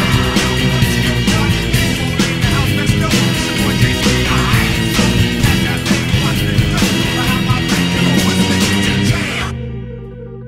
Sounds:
Music

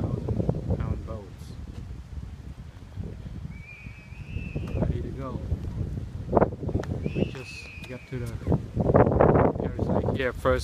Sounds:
Speech

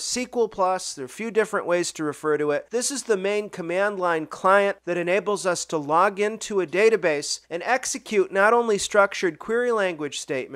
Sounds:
Speech

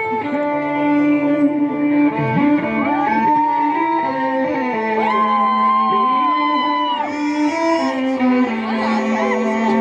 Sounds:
Musical instrument, fiddle, Music

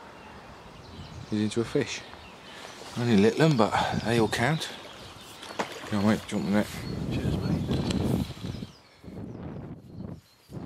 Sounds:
Speech

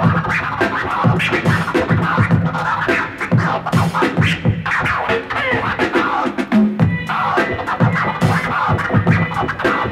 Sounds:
Music, Electronic music, Scratching (performance technique)

